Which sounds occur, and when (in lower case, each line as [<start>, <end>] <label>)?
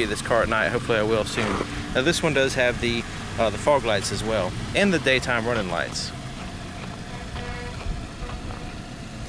[0.00, 1.63] male speech
[0.00, 9.25] medium engine (mid frequency)
[1.21, 1.58] generic impact sounds
[1.93, 3.03] male speech
[3.38, 4.50] male speech
[4.71, 6.13] male speech
[6.35, 6.47] generic impact sounds
[6.73, 6.87] generic impact sounds
[6.76, 7.87] music
[7.70, 7.87] generic impact sounds
[8.13, 8.40] music
[8.17, 8.37] generic impact sounds
[8.46, 8.54] tick